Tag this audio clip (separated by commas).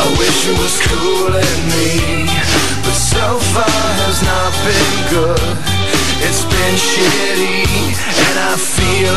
Music